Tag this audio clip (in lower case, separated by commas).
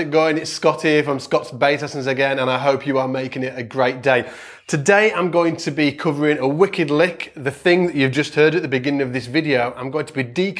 speech